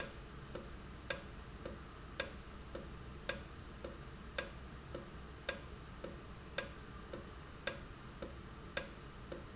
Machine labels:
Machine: valve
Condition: normal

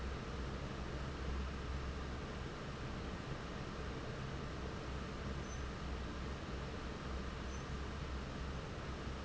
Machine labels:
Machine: fan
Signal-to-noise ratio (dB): 0 dB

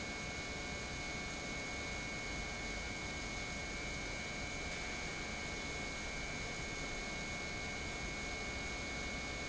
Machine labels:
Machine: pump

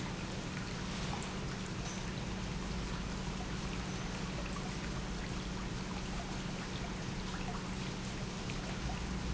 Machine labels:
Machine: pump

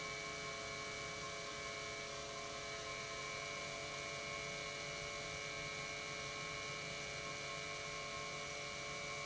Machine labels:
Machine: pump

